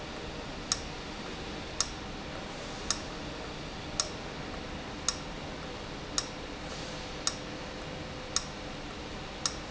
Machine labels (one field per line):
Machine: valve